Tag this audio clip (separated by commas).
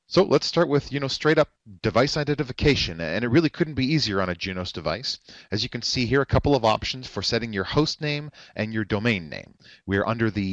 Speech